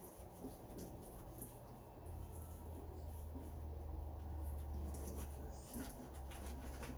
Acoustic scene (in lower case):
kitchen